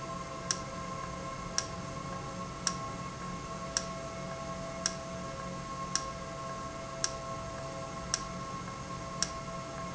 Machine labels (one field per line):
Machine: valve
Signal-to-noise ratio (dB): -6 dB